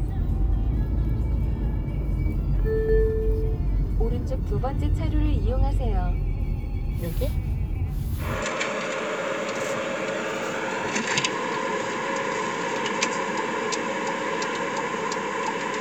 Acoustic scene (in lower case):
car